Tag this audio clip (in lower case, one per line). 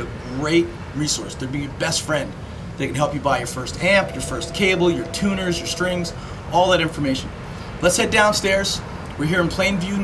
speech